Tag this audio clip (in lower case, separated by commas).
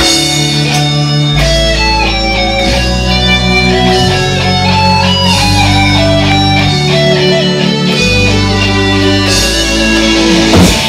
plucked string instrument, playing bass guitar, electric guitar, music, musical instrument, guitar, bass guitar, strum